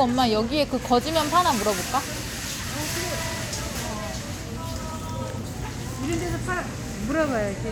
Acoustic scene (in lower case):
crowded indoor space